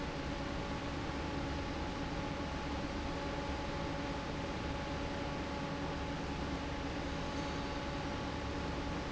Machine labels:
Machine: fan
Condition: normal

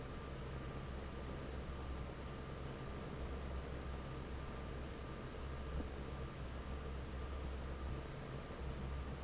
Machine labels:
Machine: fan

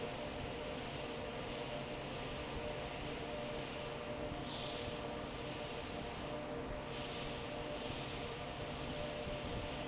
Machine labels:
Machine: fan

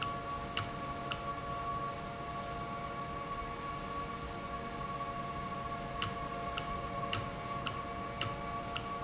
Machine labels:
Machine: valve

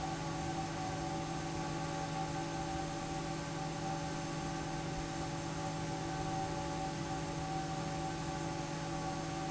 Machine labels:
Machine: fan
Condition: normal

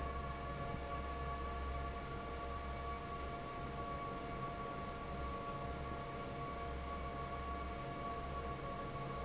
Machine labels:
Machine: fan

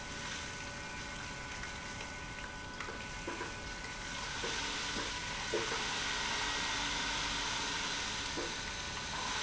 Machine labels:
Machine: pump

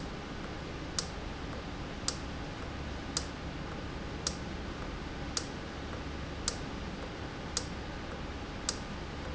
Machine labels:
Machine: valve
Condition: normal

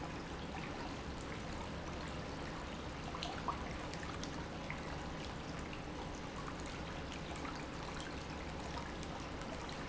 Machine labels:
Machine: pump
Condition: normal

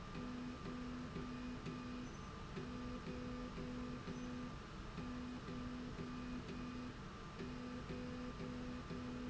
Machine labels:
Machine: slide rail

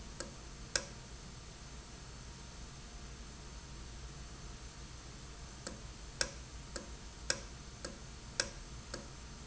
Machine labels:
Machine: valve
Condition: normal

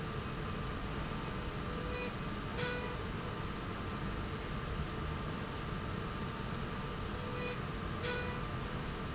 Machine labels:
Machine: slide rail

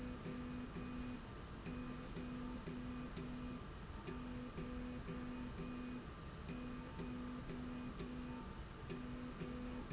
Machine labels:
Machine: slide rail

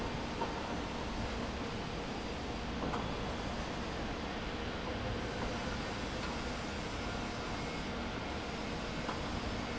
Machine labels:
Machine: fan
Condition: abnormal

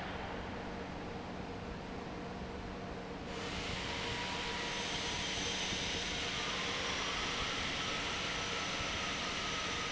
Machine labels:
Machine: fan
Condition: normal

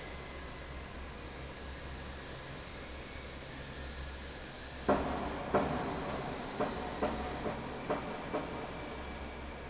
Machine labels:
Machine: fan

